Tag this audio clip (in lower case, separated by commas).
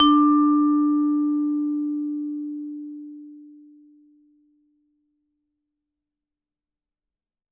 percussion, musical instrument, music, mallet percussion